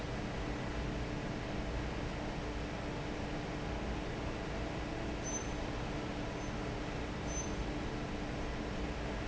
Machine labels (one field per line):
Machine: fan